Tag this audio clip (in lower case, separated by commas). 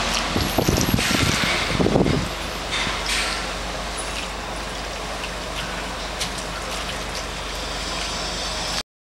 snake, animal